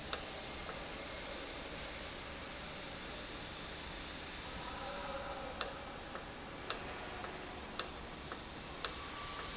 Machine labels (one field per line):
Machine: valve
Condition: normal